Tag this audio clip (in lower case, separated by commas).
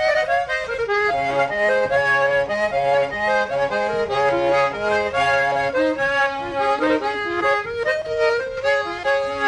accordion, playing accordion, music, traditional music